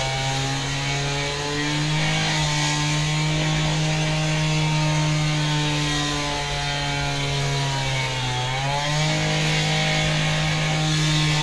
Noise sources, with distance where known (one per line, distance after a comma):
chainsaw, near